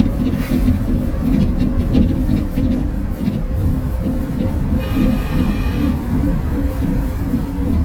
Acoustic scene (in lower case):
bus